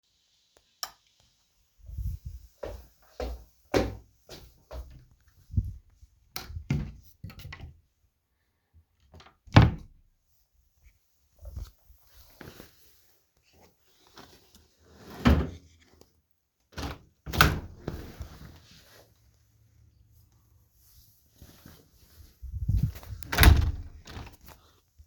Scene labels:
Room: bedroom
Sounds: light switch, footsteps, wardrobe or drawer (more than once), window (more than once)

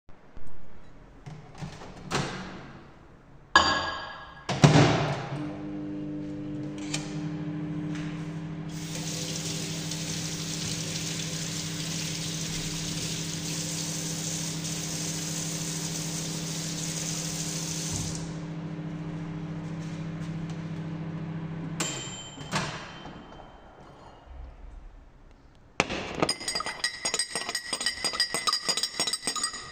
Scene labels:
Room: kitchen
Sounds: microwave, cutlery and dishes, running water

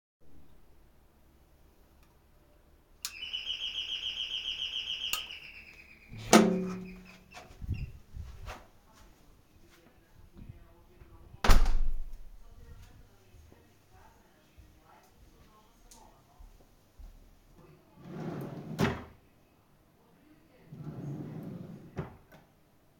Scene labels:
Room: hallway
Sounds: bell ringing, door, wardrobe or drawer (more than once)

